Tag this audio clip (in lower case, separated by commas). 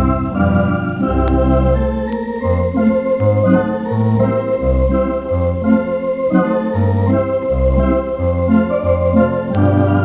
keyboard (musical), electric piano, piano